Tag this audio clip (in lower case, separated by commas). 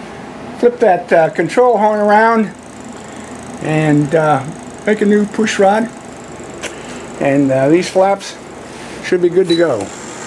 speech